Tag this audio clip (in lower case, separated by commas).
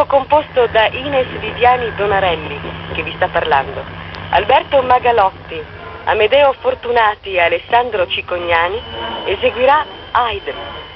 speech, radio